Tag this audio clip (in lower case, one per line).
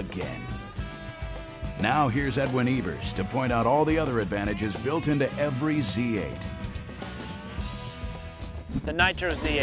speech
music